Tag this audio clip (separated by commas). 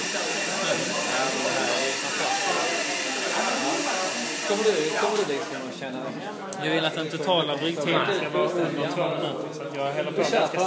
Speech